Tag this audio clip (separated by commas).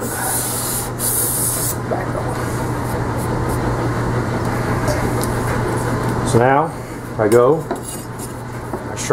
Rub, Filing (rasp)